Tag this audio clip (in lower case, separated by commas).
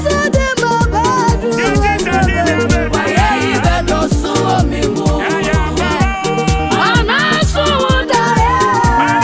music, gospel music